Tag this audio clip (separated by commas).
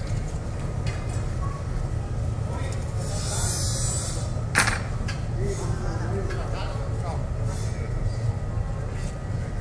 Speech